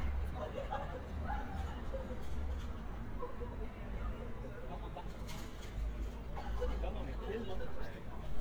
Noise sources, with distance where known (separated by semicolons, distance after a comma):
person or small group talking, near